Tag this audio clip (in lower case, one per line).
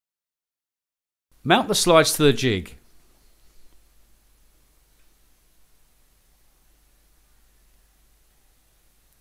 silence
speech